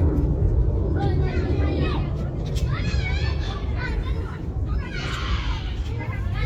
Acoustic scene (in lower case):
residential area